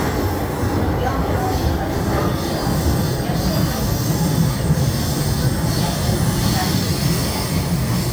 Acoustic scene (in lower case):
subway train